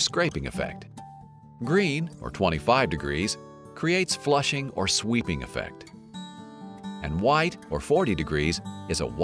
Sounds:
music, speech

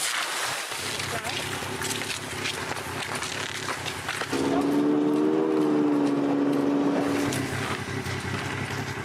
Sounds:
skiing

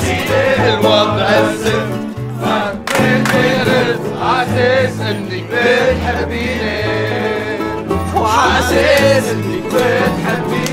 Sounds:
music

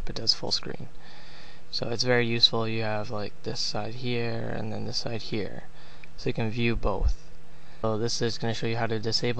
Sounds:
speech

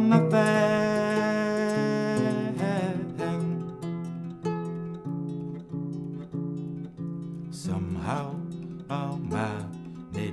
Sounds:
music, plucked string instrument, musical instrument, harp

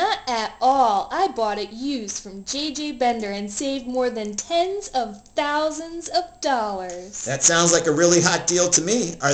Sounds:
speech

